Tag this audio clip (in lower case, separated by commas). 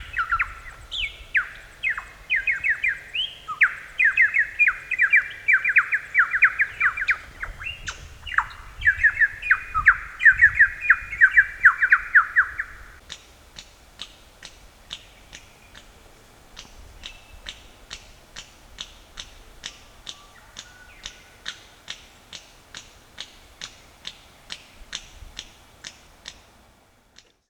wild animals, animal, bird vocalization, bird